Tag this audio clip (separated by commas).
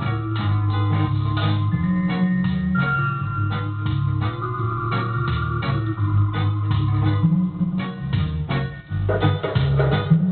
Music